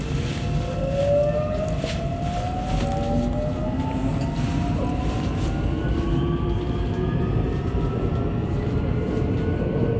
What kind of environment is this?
subway train